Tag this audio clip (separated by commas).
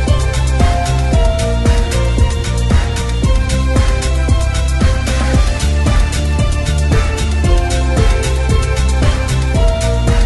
Music, Background music